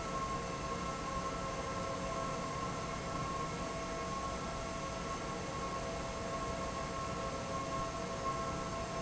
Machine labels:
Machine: fan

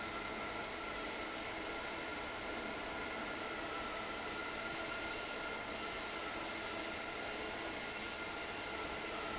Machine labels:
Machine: fan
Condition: normal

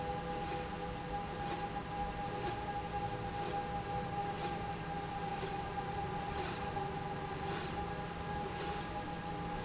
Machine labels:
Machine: slide rail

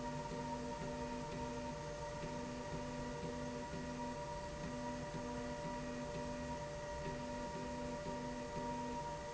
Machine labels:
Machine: slide rail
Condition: normal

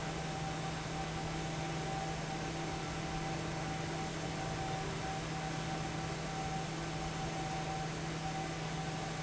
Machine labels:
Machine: fan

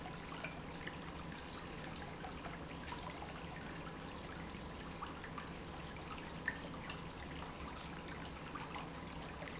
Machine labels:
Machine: pump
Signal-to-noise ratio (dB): 6 dB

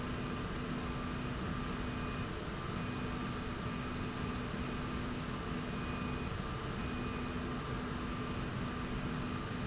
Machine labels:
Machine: slide rail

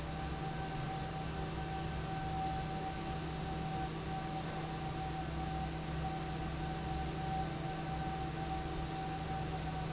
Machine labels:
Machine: fan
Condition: normal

